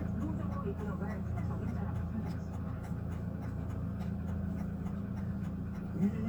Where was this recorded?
in a car